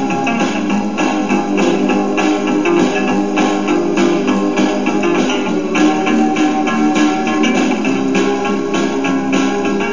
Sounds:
Music

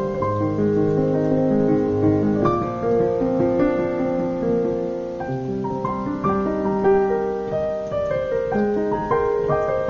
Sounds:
Music, Keyboard (musical), Musical instrument, Piano, playing piano, Electric piano

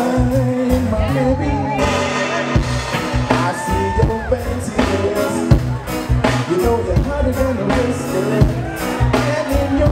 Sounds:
Music, Singing, Crowd

